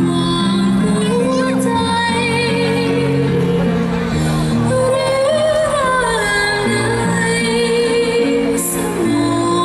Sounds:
female singing
music

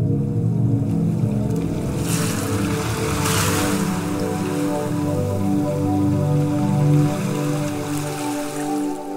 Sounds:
music

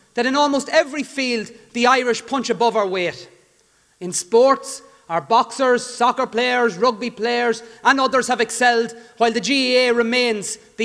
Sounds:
male speech
monologue
speech

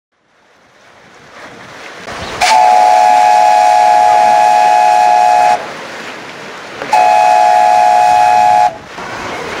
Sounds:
steam whistle

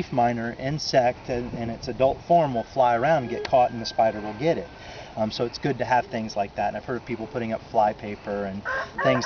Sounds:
animal
speech

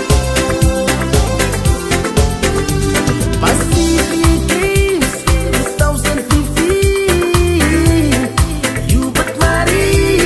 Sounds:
music

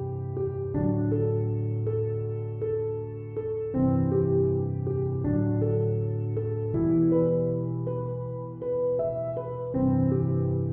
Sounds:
sad music
music

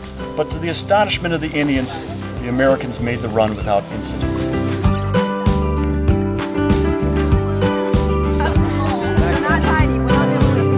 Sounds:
music
speech

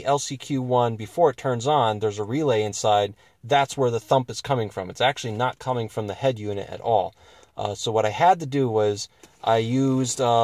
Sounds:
speech

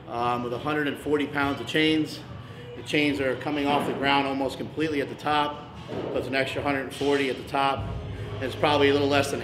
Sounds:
speech

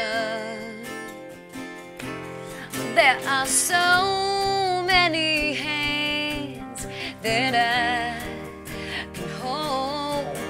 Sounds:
music

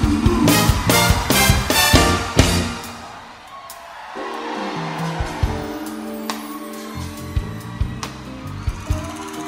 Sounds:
music

